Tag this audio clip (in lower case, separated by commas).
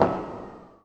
explosion, fireworks